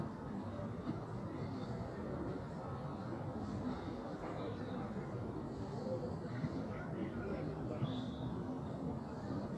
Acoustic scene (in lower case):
park